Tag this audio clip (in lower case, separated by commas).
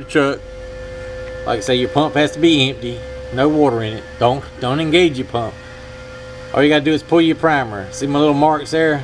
speech